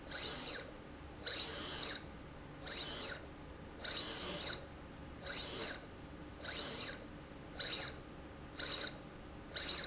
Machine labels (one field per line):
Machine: slide rail